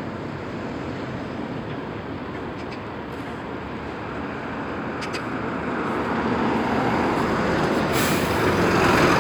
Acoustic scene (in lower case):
street